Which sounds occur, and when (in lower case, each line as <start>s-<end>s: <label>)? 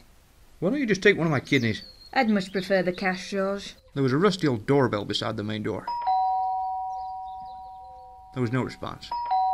0.0s-9.5s: background noise
0.6s-9.1s: conversation
0.6s-1.8s: male speech
1.3s-3.9s: bird call
2.1s-3.8s: woman speaking
4.0s-5.9s: male speech
4.3s-4.5s: generic impact sounds
5.8s-9.5s: ding-dong
6.0s-8.2s: bird call
8.3s-9.1s: male speech